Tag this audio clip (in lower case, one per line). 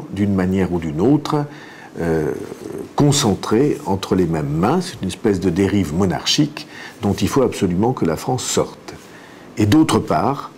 speech